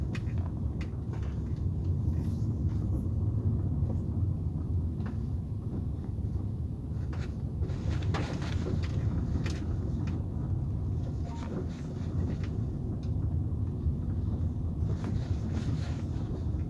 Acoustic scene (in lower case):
car